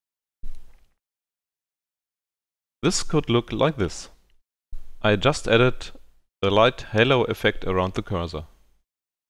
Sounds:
Speech

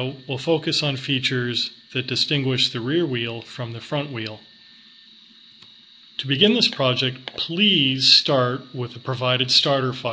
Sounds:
Speech

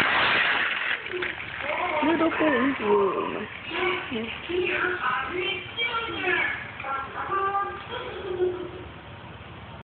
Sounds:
Speech

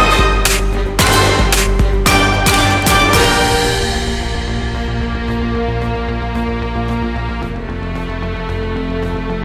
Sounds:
Music

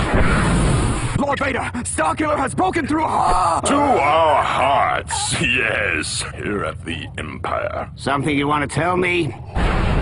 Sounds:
Speech

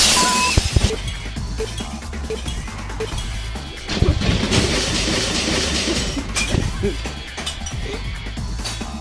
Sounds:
Music

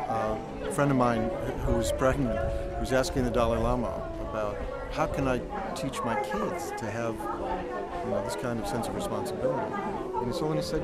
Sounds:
Speech, Music

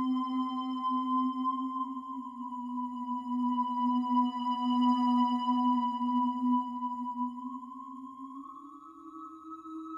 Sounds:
Music

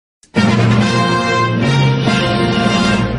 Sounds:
Television, Music

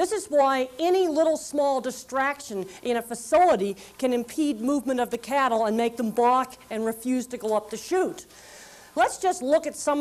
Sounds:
Speech

